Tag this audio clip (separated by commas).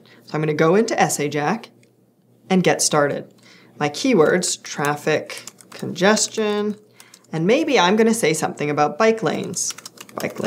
Writing, Speech